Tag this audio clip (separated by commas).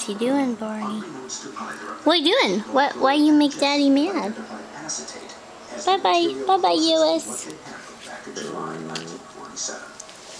Animal, Speech